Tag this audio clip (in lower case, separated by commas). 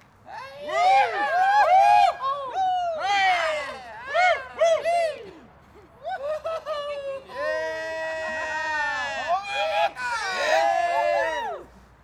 cheering, human group actions